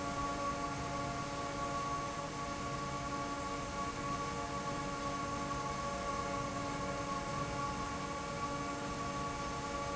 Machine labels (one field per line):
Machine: fan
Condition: normal